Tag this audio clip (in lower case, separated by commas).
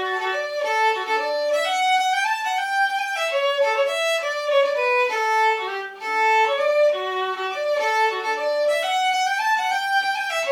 violin, playing violin, music, musical instrument